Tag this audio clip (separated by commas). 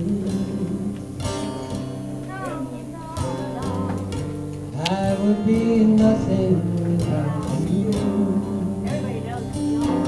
Male singing, Music